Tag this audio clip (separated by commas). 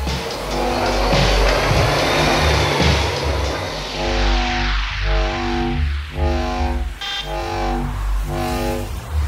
Music